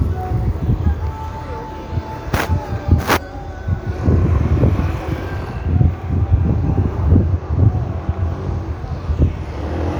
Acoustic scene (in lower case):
street